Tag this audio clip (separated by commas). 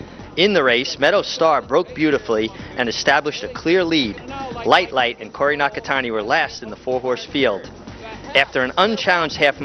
Music, Speech